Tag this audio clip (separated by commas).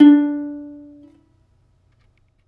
Musical instrument, Plucked string instrument, Music